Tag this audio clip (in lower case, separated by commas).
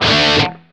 music, guitar, musical instrument, plucked string instrument